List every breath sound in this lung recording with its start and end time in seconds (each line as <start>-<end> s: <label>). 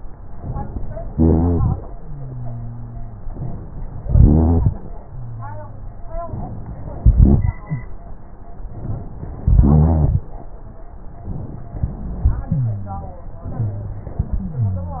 0.38-1.10 s: inhalation
1.10-1.82 s: exhalation
1.10-1.82 s: rhonchi
1.92-3.26 s: wheeze
3.32-4.04 s: inhalation
4.08-4.74 s: exhalation
4.08-4.74 s: rhonchi
4.99-6.34 s: wheeze
6.32-6.98 s: inhalation
7.04-7.59 s: exhalation
7.04-7.59 s: rhonchi
7.65-7.91 s: wheeze
8.73-9.47 s: inhalation
9.52-10.27 s: exhalation
9.52-10.27 s: rhonchi
11.76-12.51 s: inhalation
12.52-13.26 s: exhalation
12.52-13.26 s: wheeze
13.53-14.27 s: inhalation
13.53-14.27 s: wheeze
14.32-15.00 s: exhalation
14.32-15.00 s: wheeze